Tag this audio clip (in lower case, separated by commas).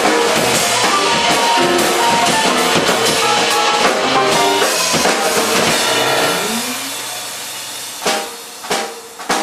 rimshot, percussion, snare drum, hi-hat, drum, drum kit, cymbal, bass drum